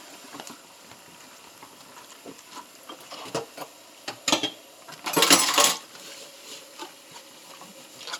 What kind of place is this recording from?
kitchen